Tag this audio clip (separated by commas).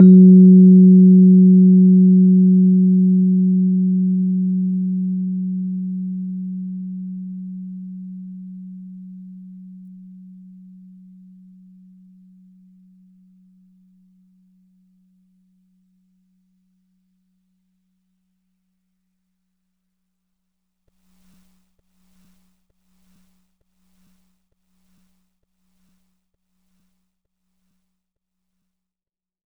Music, Piano, Musical instrument, Keyboard (musical)